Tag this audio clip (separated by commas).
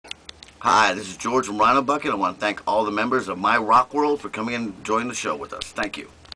Speech